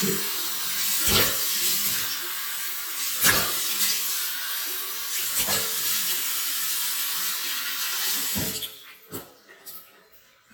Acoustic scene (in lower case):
restroom